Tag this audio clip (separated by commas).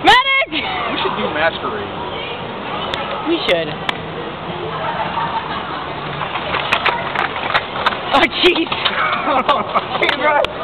Speech